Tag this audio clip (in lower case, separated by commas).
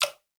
liquid, drip